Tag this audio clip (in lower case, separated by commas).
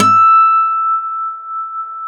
plucked string instrument, music, acoustic guitar, guitar, musical instrument